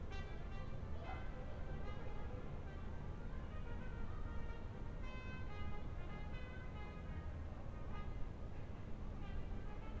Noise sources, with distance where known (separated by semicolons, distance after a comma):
music from an unclear source